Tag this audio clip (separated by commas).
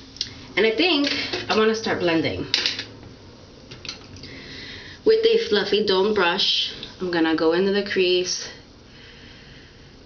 Speech